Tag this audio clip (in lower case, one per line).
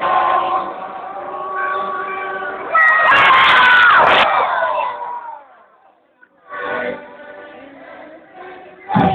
speech
music
outside, urban or man-made